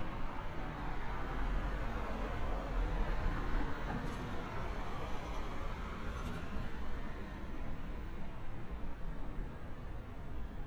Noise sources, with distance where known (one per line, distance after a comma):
engine of unclear size, near